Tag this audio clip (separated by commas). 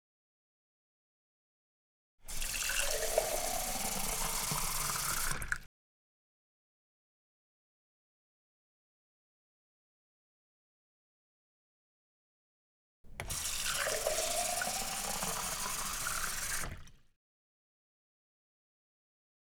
Domestic sounds, Water tap